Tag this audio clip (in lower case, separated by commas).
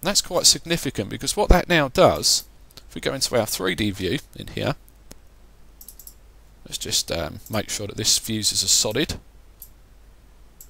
clicking, speech